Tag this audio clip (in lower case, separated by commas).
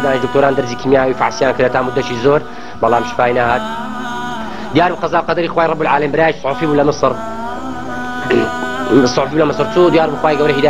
speech